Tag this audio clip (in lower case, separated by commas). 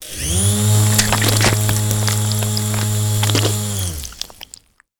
tools, drill, power tool, engine